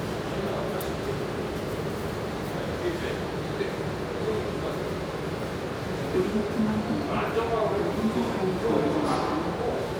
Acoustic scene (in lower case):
subway station